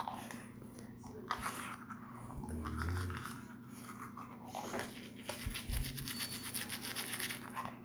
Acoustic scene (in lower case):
restroom